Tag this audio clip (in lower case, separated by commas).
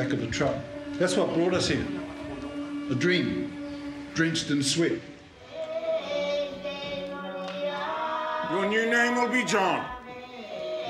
speech, music